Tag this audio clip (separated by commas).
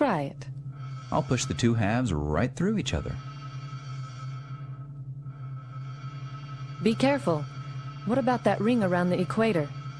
Music, Speech